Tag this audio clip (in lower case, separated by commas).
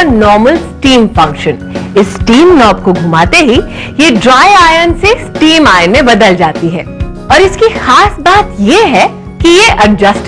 speech, music